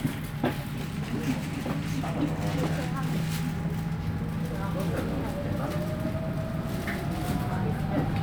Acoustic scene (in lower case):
bus